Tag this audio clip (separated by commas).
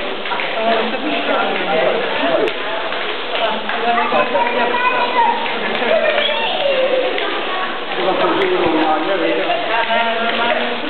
Speech